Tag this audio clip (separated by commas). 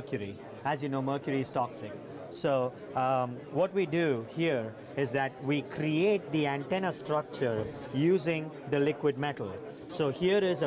Speech